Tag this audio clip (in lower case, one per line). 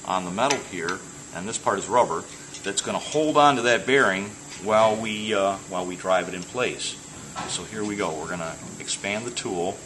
speech